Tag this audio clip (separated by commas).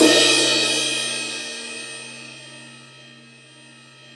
Musical instrument, Percussion, Cymbal, Music, Crash cymbal